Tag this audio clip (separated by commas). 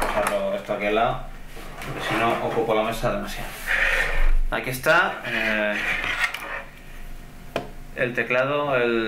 Speech